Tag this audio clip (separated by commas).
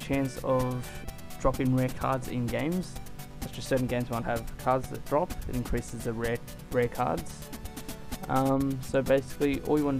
Music, Speech